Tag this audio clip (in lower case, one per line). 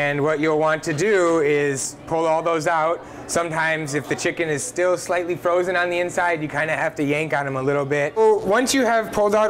speech